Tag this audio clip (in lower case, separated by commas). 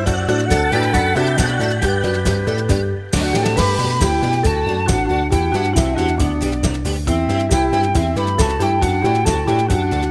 music